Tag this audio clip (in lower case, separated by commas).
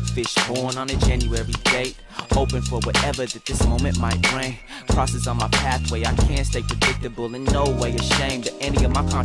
music, rapping, hip hop music